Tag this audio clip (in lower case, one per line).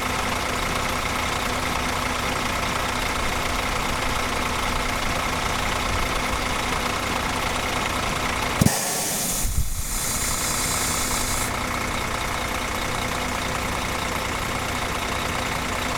motor vehicle (road)
engine
vehicle
bus
idling